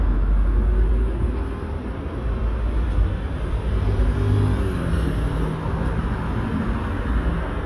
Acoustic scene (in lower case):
street